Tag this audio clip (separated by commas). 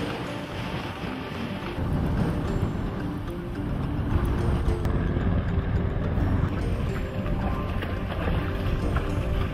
Music